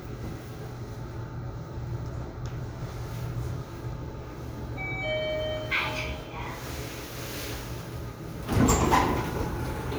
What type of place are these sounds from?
elevator